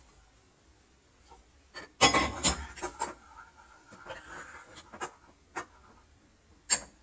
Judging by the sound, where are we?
in a kitchen